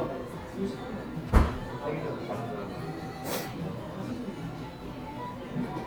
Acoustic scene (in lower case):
cafe